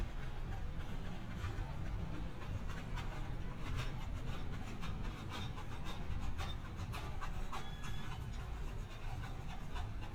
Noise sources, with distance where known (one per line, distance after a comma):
non-machinery impact